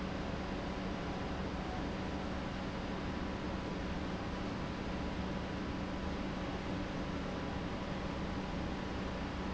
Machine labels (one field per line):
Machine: pump